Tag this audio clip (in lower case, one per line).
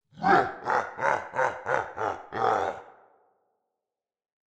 human voice
laughter